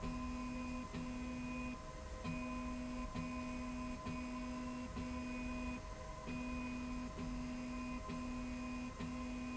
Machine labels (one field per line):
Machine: slide rail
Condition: normal